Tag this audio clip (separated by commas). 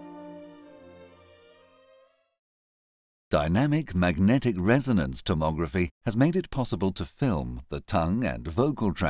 Speech, Music